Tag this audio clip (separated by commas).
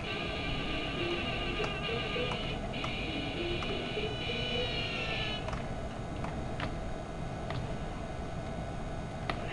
Music